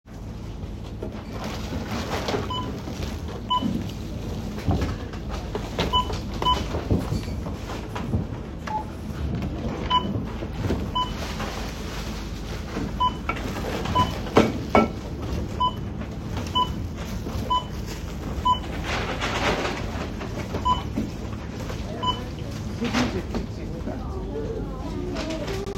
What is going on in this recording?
I was typing I heard notification sound of my phone in toilet so I walk toward light switch open it and grab my phone